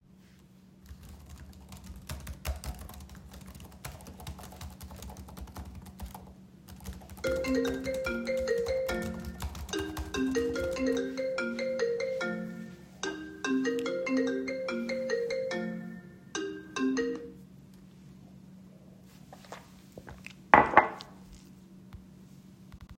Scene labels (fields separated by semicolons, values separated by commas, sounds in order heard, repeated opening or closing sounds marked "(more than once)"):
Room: office; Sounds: keyboard typing, phone ringing